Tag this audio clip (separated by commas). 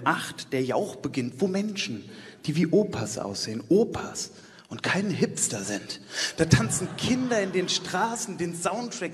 Speech